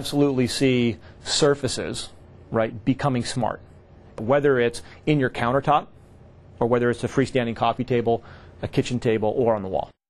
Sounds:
speech

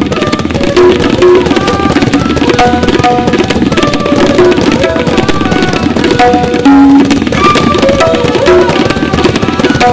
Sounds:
percussion, music

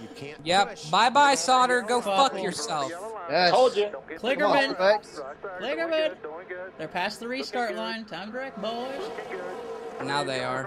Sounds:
speech, vehicle

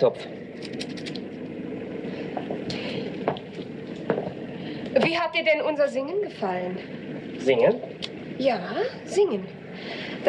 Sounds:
speech, white noise

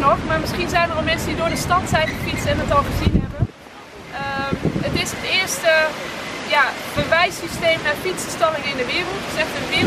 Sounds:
bicycle, speech, vehicle

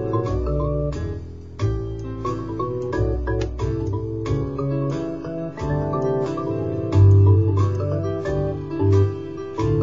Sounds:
music, inside a small room

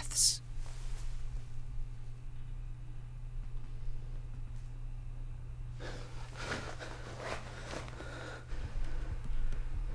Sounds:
gasp

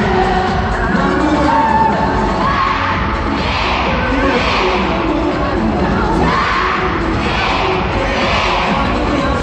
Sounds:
music

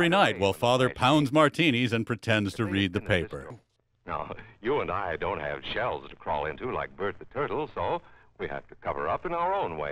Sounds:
speech

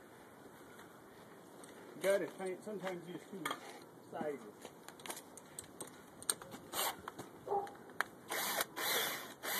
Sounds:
speech

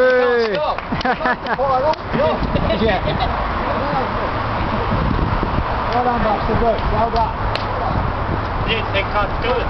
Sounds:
outside, urban or man-made, speech

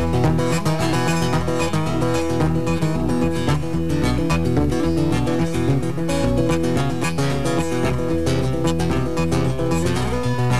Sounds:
strum, plucked string instrument, guitar, musical instrument, music, acoustic guitar

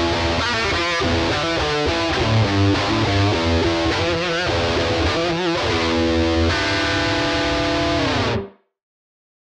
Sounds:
guitar, playing bass guitar, musical instrument, plucked string instrument, strum, bass guitar, music

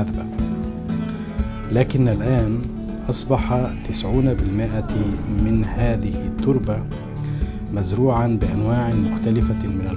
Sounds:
speech, music

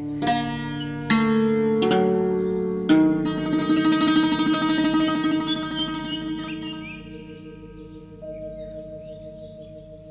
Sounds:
tender music, music

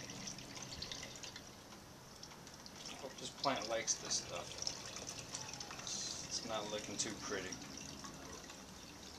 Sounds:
liquid, fill (with liquid), speech

